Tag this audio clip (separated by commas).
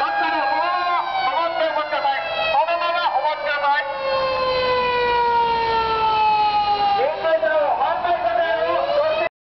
Speech, Vehicle